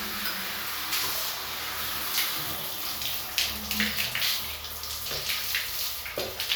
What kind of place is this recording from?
restroom